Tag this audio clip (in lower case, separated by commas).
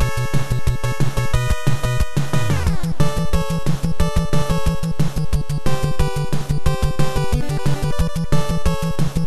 video game music, music